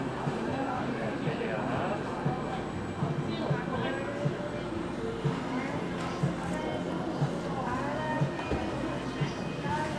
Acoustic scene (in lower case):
cafe